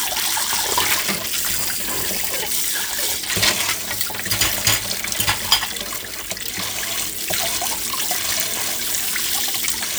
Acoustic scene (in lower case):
kitchen